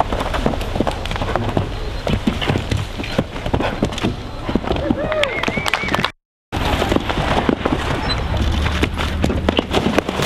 Horse trotting before a small crowd briefly cheers